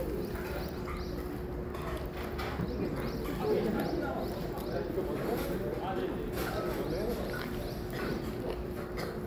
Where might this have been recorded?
in a residential area